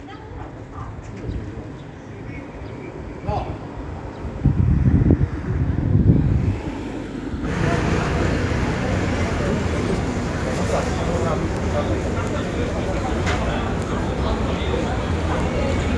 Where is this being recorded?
in a residential area